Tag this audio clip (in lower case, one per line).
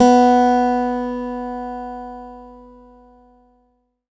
plucked string instrument
guitar
acoustic guitar
music
musical instrument